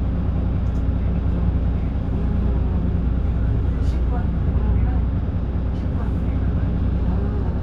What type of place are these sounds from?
bus